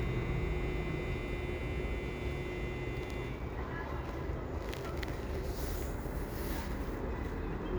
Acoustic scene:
residential area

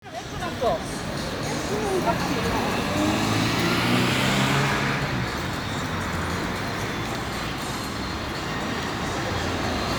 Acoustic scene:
street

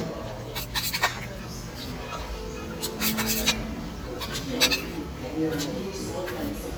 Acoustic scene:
restaurant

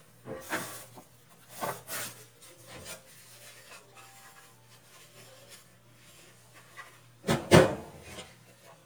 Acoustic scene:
kitchen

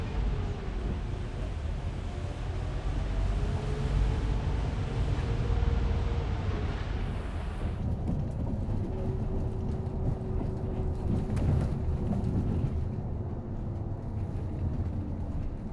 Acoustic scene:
bus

